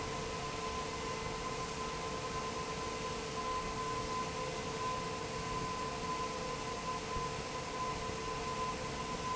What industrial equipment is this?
fan